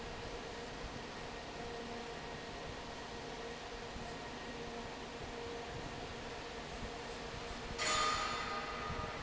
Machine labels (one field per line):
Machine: fan